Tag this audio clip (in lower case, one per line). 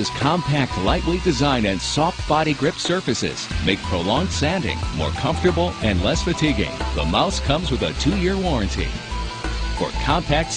speech
music